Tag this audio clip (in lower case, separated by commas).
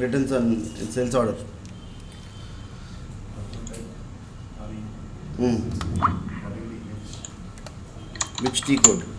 speech, typing, computer keyboard